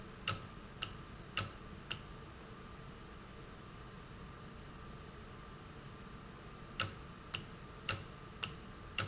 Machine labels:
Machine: valve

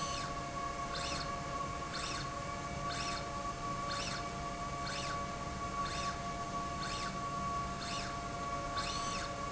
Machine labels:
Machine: slide rail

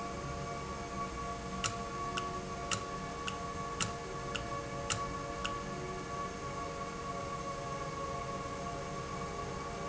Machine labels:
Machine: valve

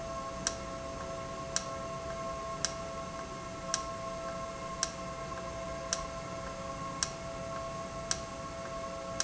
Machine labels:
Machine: valve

